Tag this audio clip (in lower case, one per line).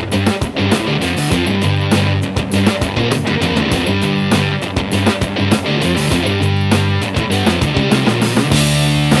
techno
music